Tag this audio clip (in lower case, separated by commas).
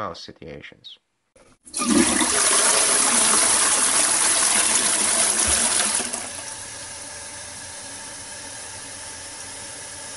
speech, toilet flush